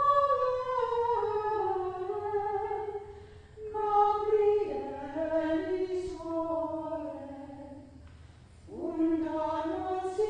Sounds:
Mantra

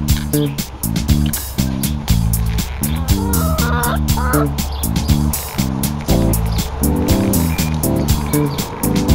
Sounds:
rooster, Fowl

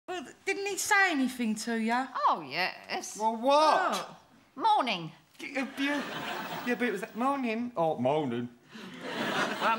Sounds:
Speech, Laughter

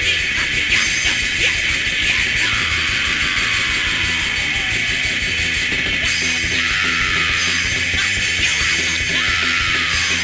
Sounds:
Music

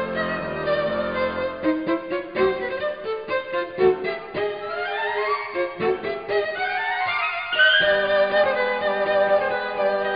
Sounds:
fiddle, Music

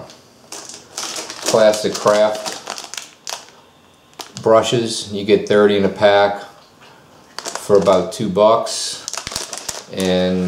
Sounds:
Speech

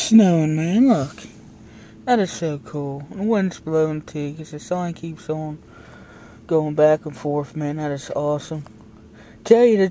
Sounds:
Speech

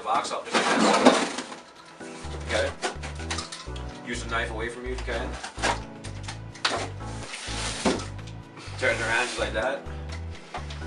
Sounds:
Music, Speech

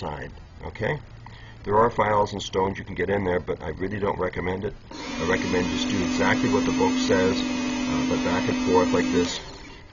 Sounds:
sharpen knife

